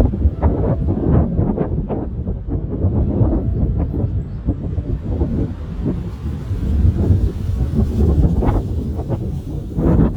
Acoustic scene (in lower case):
park